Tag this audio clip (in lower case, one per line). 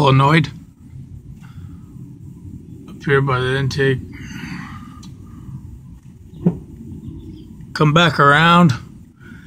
speech